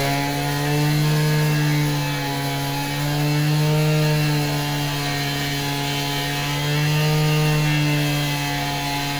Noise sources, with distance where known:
unidentified powered saw, near

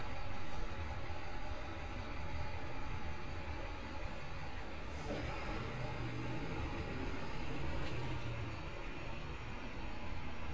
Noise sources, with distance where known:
large-sounding engine, near

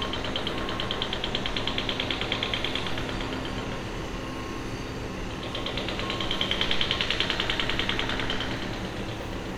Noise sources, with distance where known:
unidentified impact machinery

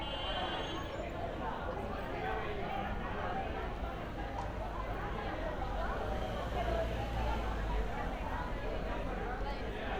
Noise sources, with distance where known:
large crowd

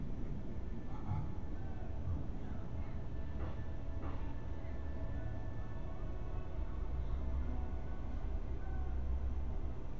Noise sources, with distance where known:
background noise

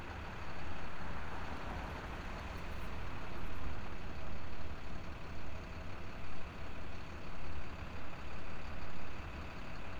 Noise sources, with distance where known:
engine of unclear size, near

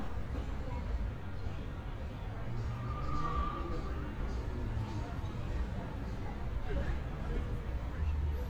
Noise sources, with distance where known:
engine of unclear size, near; person or small group talking

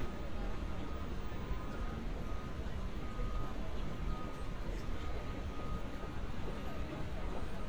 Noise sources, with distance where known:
reverse beeper, far; person or small group talking, far

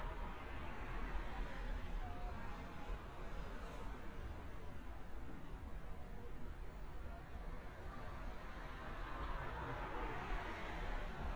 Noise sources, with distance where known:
background noise

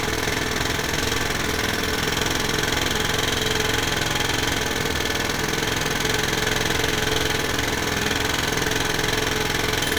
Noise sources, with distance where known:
unidentified impact machinery, near

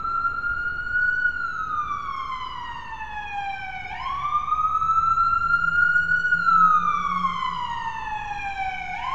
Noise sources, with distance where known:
siren, near

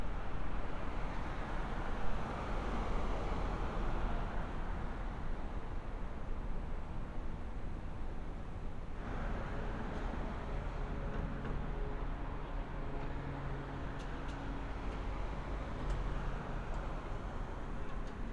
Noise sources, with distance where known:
engine of unclear size

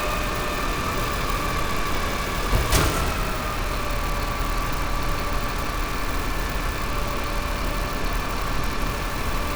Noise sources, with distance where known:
unidentified impact machinery, near

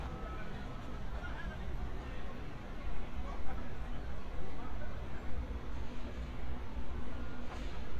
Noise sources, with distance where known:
unidentified human voice, far

